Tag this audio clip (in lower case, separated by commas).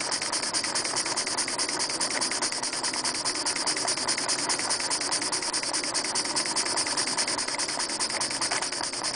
engine, idling